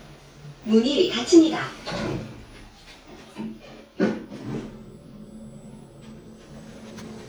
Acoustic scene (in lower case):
elevator